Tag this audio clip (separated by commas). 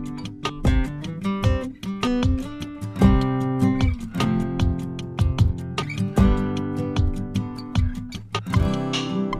Music